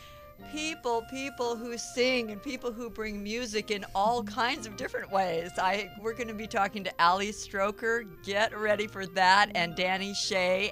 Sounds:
speech, music

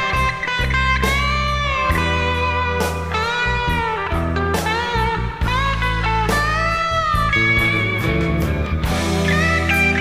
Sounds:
music

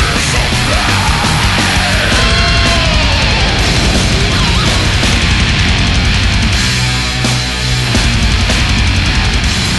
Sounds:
music, heavy metal

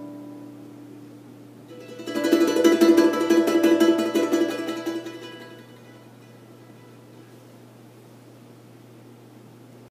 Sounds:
mandolin, ukulele, guitar, musical instrument, music, plucked string instrument

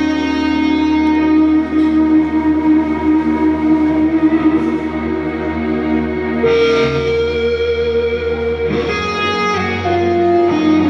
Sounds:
musical instrument, plucked string instrument, music, guitar

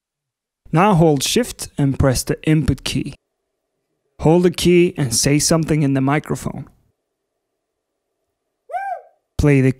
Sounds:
speech

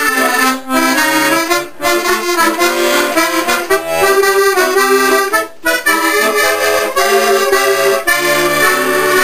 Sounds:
accordion

